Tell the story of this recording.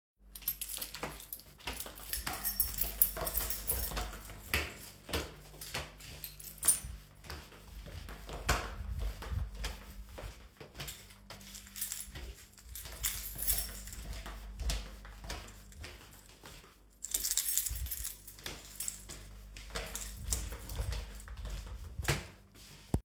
I was walking. I had my keys in my hand.